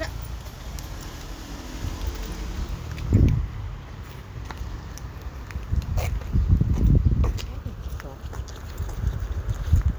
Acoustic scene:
residential area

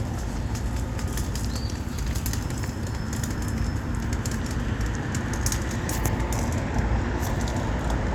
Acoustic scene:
residential area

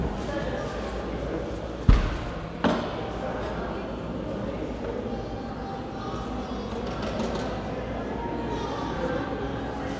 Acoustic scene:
cafe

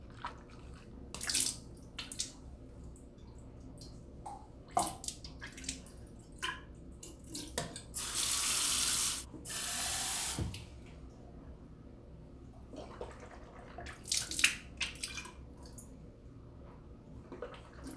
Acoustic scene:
restroom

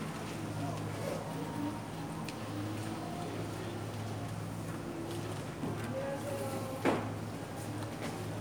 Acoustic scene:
cafe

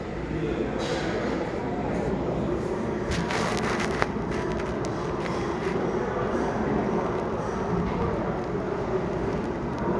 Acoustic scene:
restaurant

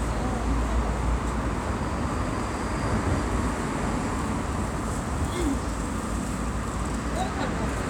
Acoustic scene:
street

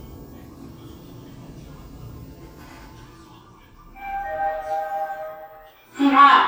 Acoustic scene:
elevator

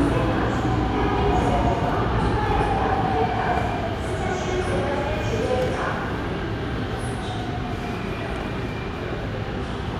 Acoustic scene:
subway station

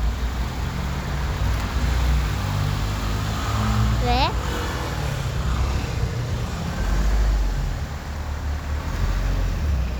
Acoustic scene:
street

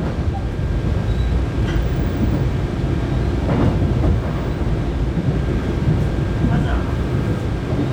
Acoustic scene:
subway train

